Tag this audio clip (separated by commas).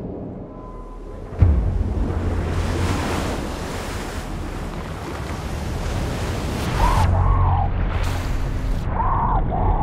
Music, outside, rural or natural